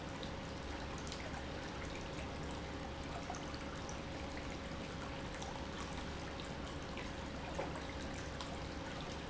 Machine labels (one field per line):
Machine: pump